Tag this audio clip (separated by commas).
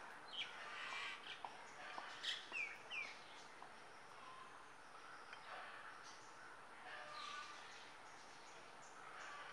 mynah bird singing